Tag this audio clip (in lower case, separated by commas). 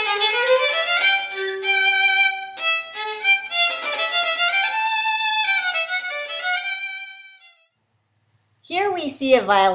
speech, musical instrument, fiddle, music